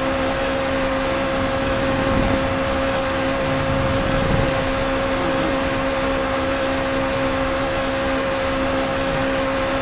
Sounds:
vehicle, car

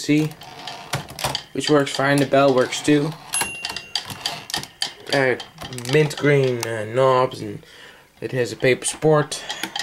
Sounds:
speech, typewriter

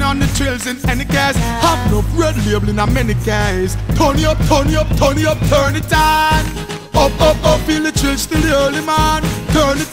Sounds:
music

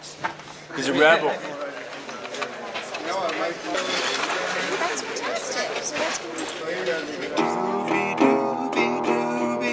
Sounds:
guitar, plucked string instrument, strum, musical instrument, music, speech

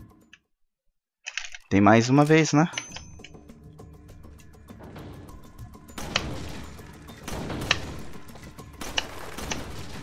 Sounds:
cap gun shooting

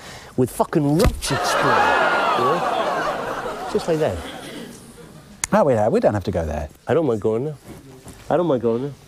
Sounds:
speech

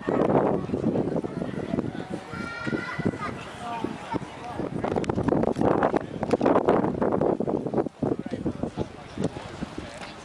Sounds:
speech, outside, rural or natural

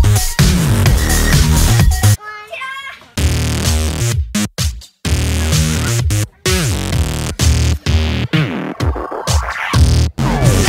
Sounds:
speech, music

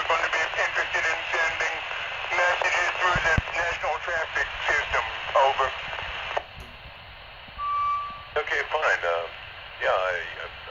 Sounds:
police radio chatter

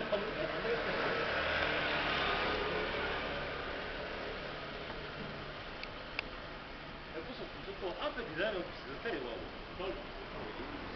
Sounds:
speech

